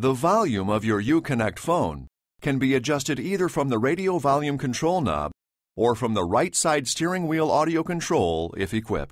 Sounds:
speech

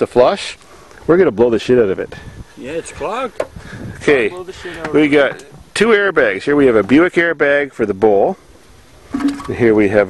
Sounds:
speech

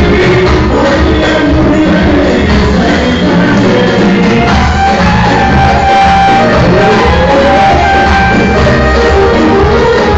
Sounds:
dance music, music

